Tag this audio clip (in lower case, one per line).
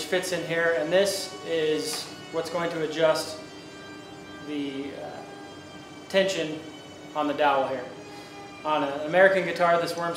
speech